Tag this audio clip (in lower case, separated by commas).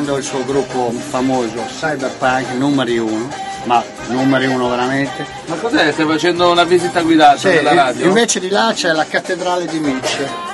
music, speech